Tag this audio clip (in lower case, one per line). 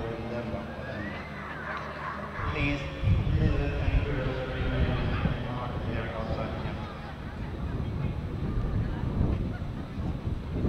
speech
pets
animal
dog